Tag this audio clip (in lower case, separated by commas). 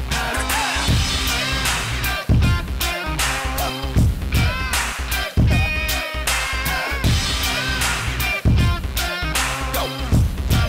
music